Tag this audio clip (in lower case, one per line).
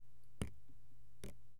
water
rain
liquid
raindrop
drip